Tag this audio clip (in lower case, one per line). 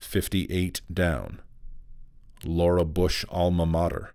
human voice
speech
male speech